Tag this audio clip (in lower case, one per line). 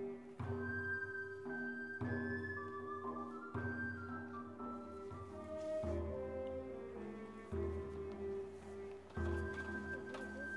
music